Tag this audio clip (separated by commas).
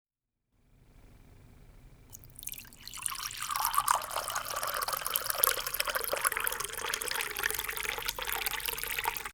Liquid